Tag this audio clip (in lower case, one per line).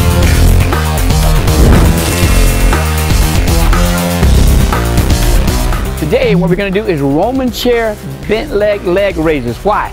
speech
music